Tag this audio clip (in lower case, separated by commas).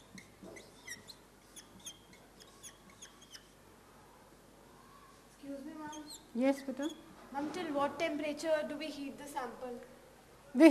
inside a small room, speech